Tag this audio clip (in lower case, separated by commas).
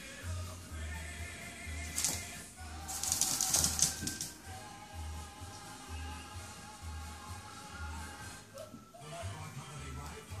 music